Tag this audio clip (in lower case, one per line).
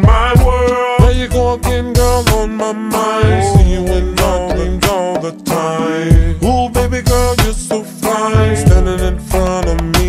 music